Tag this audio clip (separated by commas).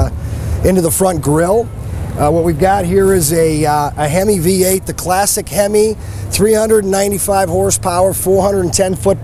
Speech, Vehicle, Car